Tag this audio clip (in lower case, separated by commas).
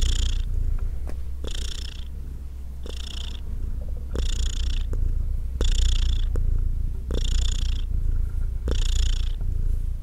cat purring